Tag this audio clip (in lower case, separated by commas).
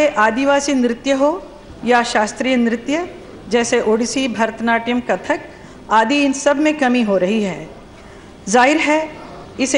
speech, monologue, female speech